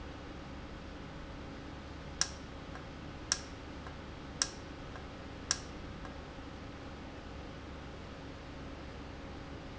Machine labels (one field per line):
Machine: valve